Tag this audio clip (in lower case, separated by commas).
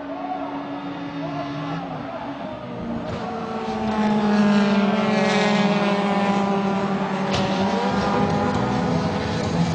speech